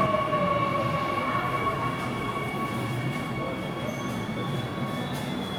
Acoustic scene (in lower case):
subway station